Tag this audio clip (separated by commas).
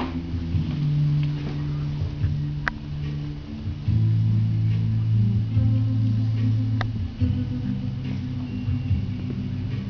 Music